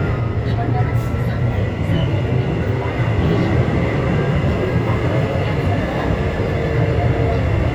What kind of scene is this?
subway train